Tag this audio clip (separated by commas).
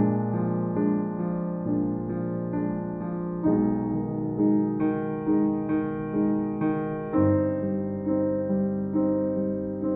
Music